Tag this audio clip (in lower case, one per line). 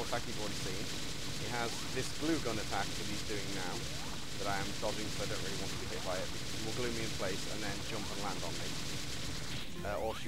speech